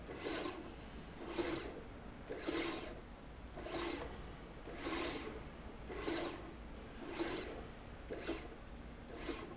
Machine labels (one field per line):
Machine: slide rail